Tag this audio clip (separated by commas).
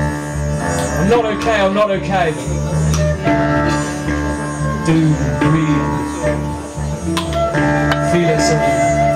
Speech, Music